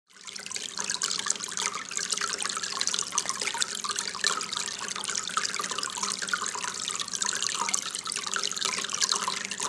Water pouring constantly onto a surface